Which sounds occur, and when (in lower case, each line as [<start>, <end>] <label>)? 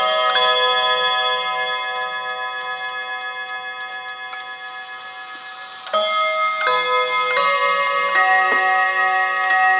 [0.00, 9.75] alarm clock
[0.28, 0.42] tick
[2.54, 2.63] tick
[3.74, 3.84] tick
[4.03, 4.14] tick
[4.31, 4.42] tick
[5.82, 5.97] tick
[6.58, 6.74] tick
[7.29, 7.43] tick
[7.83, 7.94] tick
[8.47, 8.65] tick
[9.40, 9.60] tick